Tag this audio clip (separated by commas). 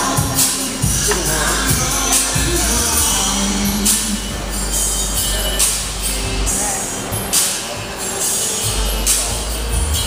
Speech, Music